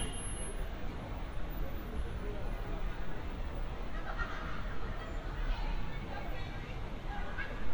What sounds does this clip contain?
car horn, person or small group shouting